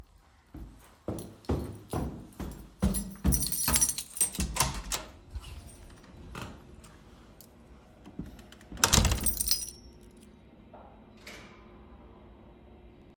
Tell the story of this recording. I walked through the hallway while holding a keychain that produced jingling sounds. While walking I approached the door and unlocked it. I opened the door and then stepped inside the room.